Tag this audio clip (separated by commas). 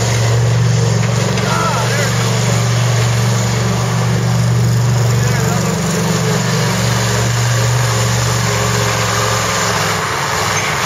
Vehicle, Truck, Speech